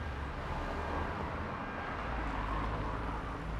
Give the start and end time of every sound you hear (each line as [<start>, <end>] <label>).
[0.00, 2.82] unclassified sound
[0.00, 3.59] car
[0.00, 3.59] car wheels rolling
[3.52, 3.59] car engine accelerating